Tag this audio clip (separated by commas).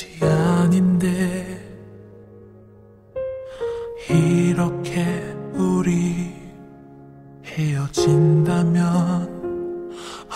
Music